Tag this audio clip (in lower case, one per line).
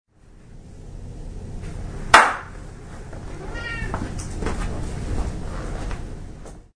cat
animal
hands
pets
clapping
meow